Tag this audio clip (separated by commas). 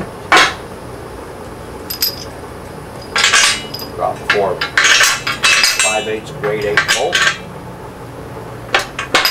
inside a large room or hall, Speech